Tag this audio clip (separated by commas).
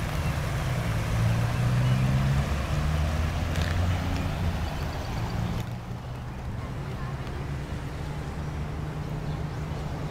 Speech, Animal